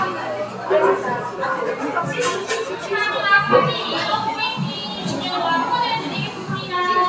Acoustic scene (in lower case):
cafe